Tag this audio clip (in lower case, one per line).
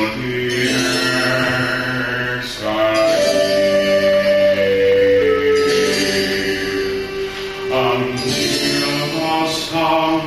chant
singing